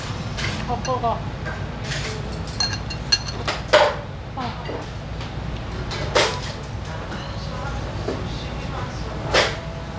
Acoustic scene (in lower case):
restaurant